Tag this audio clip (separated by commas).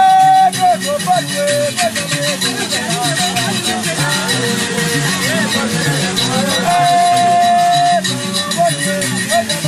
Music